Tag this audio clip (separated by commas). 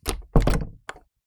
Domestic sounds, Door